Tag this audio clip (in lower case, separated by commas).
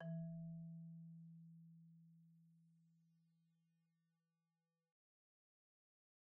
musical instrument, music, mallet percussion, marimba, percussion